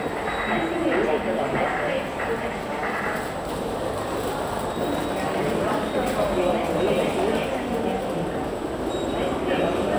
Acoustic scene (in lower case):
subway station